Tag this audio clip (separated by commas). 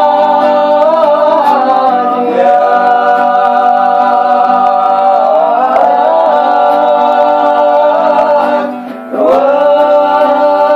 Music, inside a small room